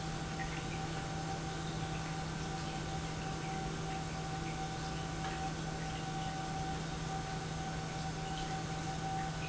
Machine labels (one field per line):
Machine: pump